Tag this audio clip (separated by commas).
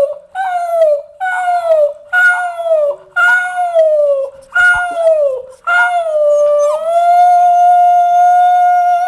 Animal, pets, Dog, Howl, Growling